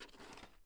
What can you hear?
plastic drawer opening